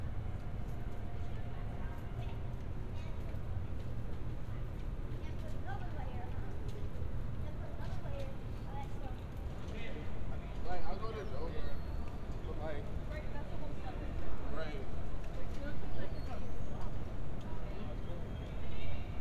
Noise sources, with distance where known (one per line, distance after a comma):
person or small group talking, near